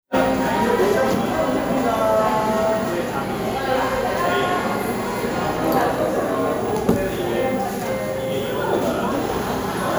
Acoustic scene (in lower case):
cafe